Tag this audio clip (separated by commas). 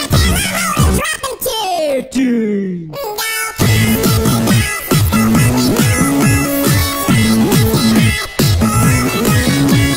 Music